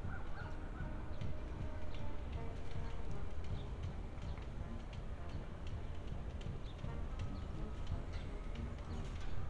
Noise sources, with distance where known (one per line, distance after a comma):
music from an unclear source, near
dog barking or whining